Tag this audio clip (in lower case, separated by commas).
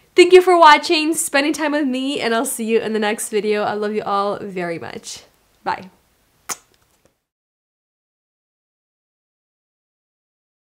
hair dryer drying